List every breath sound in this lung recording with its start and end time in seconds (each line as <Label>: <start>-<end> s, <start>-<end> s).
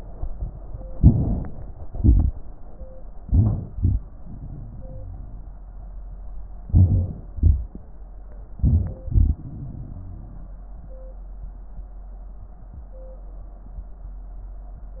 Inhalation: 0.93-1.85 s, 3.17-3.73 s, 6.70-7.38 s, 8.59-9.06 s
Exhalation: 1.86-2.47 s, 3.73-5.47 s, 7.37-8.56 s, 9.03-10.53 s
Crackles: 3.73-5.47 s, 9.03-10.53 s